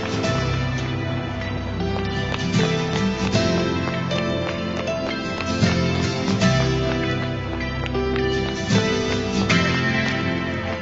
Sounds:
walk, music

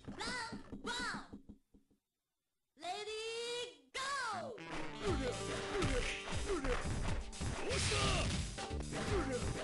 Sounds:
speech, music

